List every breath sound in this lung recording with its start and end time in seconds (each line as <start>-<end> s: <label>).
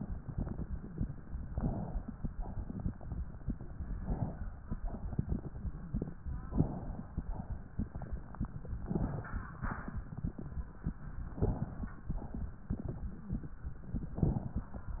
1.48-2.18 s: inhalation
2.35-2.87 s: exhalation
3.95-4.55 s: inhalation
4.80-5.41 s: exhalation
6.57-7.17 s: inhalation
7.21-7.82 s: exhalation
8.86-9.47 s: inhalation
9.64-10.25 s: exhalation
11.40-11.97 s: inhalation
12.09-12.66 s: exhalation
14.17-14.74 s: inhalation